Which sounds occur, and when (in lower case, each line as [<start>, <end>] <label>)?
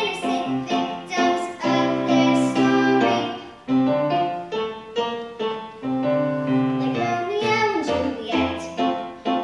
[0.00, 3.37] child singing
[0.00, 9.43] music
[6.95, 9.03] child singing
[9.26, 9.43] child singing